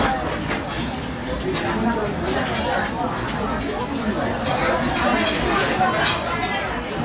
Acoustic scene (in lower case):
restaurant